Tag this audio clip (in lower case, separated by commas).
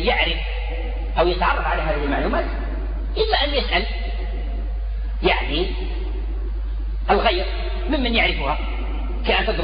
speech